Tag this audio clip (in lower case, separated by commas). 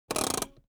car, motor vehicle (road), vehicle